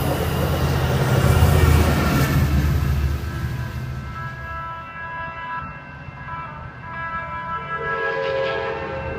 A train speeds by and blows its horn in the distance